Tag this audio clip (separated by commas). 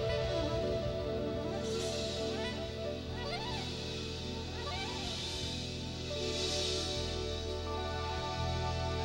Music